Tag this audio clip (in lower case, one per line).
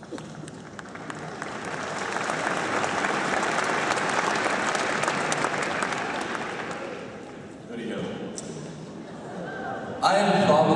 male speech
monologue
speech